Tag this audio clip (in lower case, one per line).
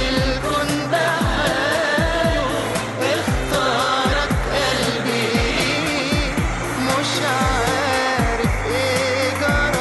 music